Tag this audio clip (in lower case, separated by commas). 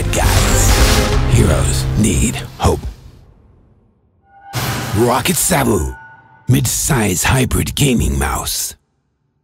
speech, music